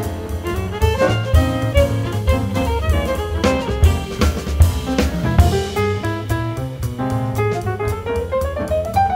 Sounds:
music
fiddle
musical instrument

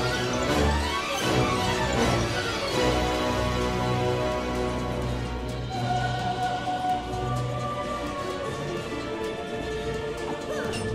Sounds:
music

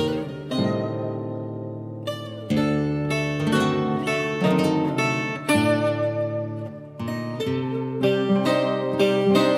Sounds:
pizzicato

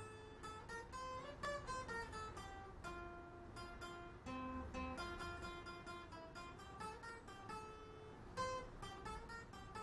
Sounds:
music
acoustic guitar
plucked string instrument
guitar
strum
musical instrument

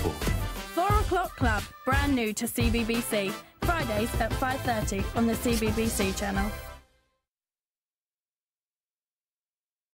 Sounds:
music
speech

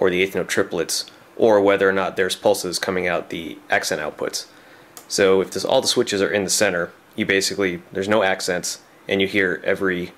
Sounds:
speech

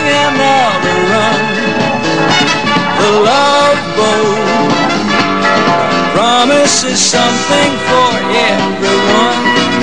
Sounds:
music

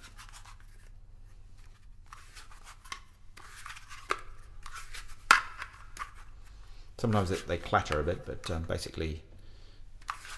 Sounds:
speech

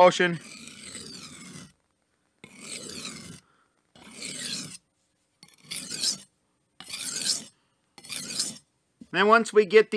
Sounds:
sharpen knife

